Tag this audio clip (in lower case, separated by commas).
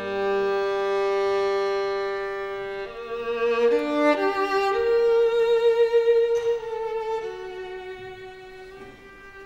music, violin, musical instrument